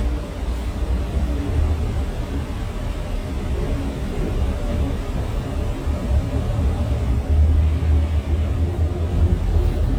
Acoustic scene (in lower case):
bus